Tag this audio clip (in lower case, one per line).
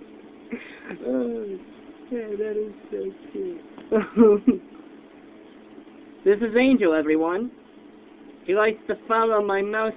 speech